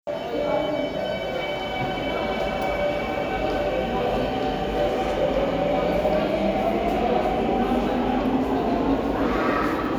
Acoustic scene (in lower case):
subway station